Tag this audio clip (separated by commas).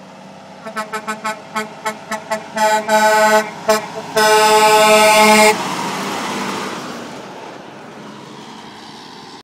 Truck, Vehicle